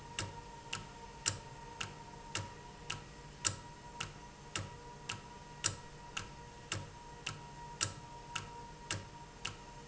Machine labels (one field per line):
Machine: valve